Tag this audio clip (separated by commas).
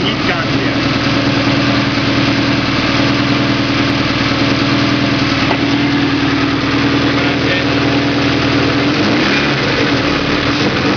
Engine, Speech, Vehicle